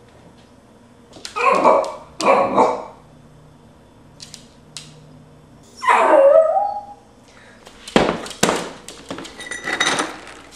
A dog barks and its nails scrape against the floor followed by some banging and scraping